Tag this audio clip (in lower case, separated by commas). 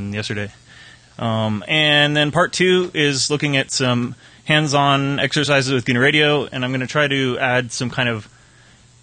speech